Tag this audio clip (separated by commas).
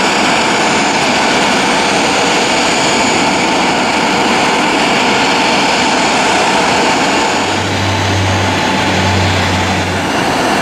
Aircraft, Vehicle, Fixed-wing aircraft